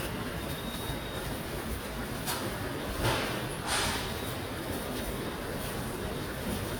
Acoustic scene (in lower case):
subway station